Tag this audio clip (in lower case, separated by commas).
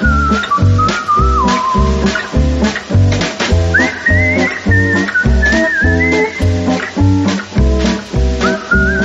music